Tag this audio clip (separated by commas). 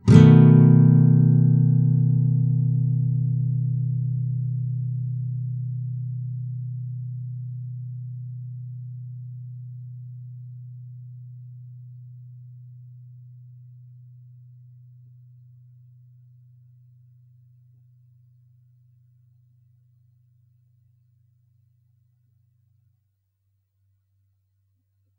Plucked string instrument, Guitar, Musical instrument, Music